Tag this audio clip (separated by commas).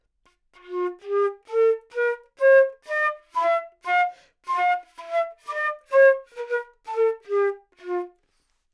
Musical instrument, Wind instrument, Music